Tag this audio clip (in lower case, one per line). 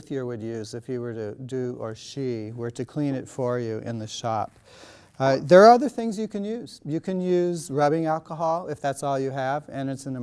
speech